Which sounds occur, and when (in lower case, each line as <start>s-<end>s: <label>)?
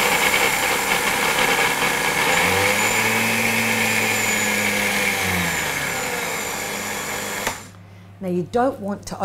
0.0s-7.5s: blender
7.4s-7.5s: generic impact sounds
8.2s-9.2s: woman speaking